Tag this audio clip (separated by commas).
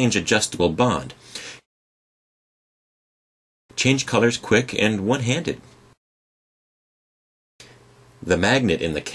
Speech